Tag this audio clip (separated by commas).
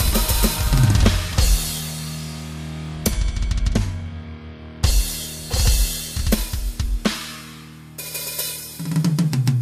Music, Bass drum, Musical instrument, Drum, Drum kit